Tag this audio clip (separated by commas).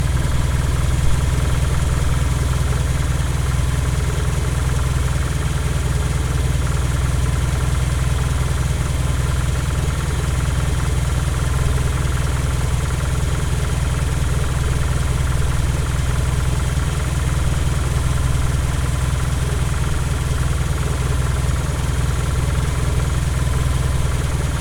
Engine, Vehicle, Motor vehicle (road), Idling, Car